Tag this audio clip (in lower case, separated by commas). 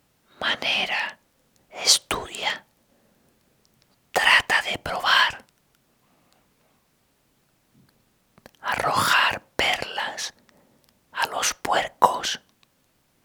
whispering, human voice